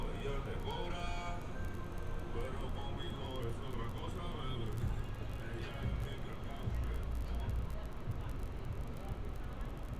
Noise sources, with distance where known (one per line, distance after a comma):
music from an unclear source, near